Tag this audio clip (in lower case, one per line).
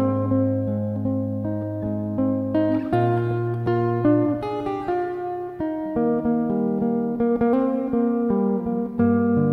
electric guitar
music
guitar
musical instrument
plucked string instrument